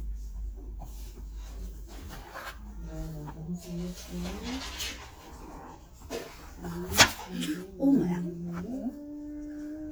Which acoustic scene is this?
crowded indoor space